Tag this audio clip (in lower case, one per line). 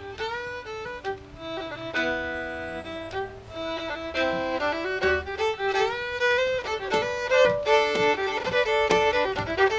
music